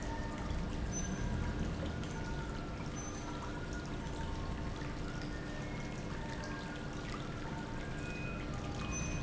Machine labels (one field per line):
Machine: pump